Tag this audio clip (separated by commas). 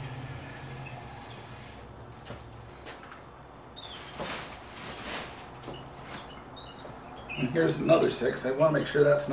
Speech